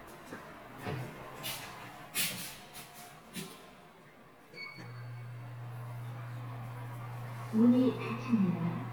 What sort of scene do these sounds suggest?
elevator